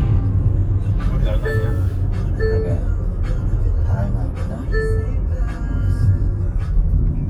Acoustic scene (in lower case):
car